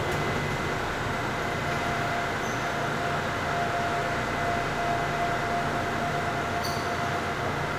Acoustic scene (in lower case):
subway train